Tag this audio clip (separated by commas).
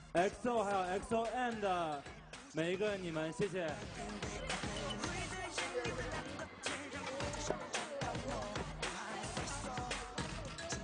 Music, Speech